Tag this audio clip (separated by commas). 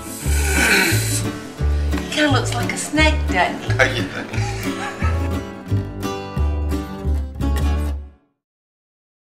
Music, Speech